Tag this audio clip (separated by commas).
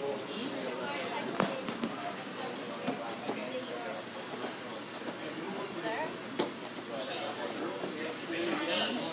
Speech, Walk